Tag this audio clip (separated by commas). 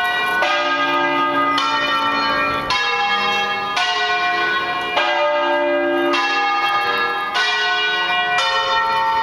Bell